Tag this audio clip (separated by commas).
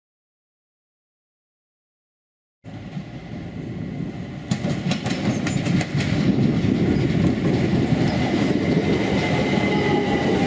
train wagon, Train, Rail transport, Vehicle